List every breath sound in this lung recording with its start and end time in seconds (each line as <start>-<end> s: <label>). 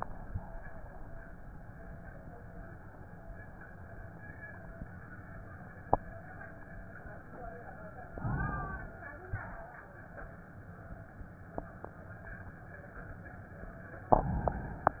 8.12-9.15 s: inhalation
9.31-10.05 s: exhalation